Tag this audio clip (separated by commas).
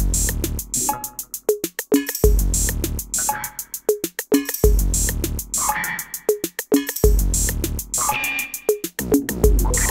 Musical instrument, Drum kit, Sampler, Drum, Music